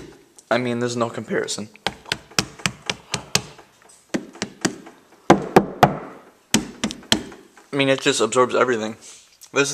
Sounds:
Speech

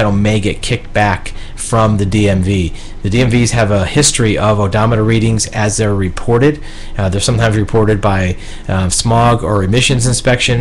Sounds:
Speech

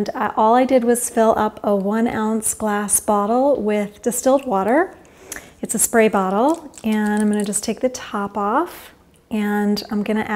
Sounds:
Speech

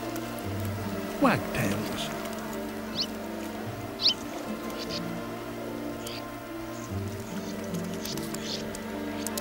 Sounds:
barn swallow calling

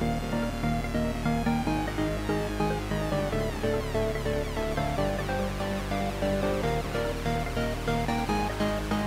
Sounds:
Music, Dubstep, Electronic music

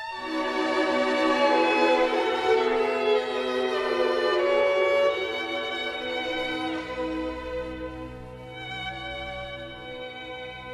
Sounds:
Musical instrument, Music, Violin

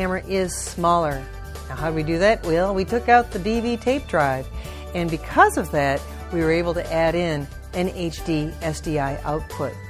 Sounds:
Speech, Music

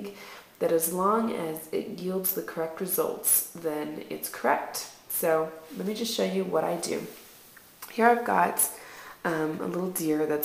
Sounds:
Speech

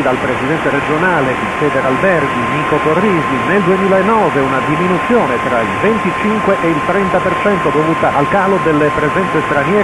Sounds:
Speech, Radio

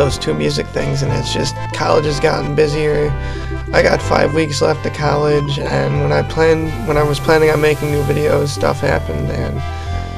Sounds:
Speech, Music

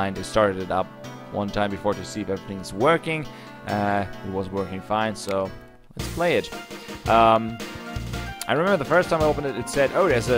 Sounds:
Music, Speech

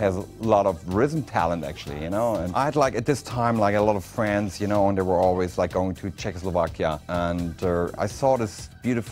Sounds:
Music, Speech

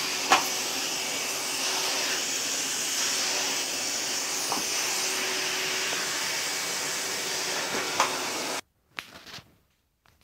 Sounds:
Vacuum cleaner

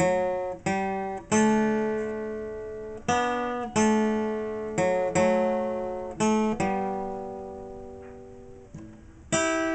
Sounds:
Music, Plucked string instrument, Musical instrument, Guitar, Strum

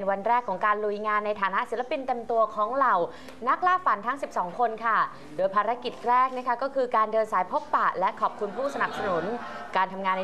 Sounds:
Speech

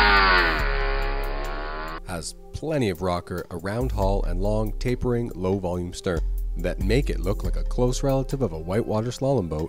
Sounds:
Speech, Vehicle, Music

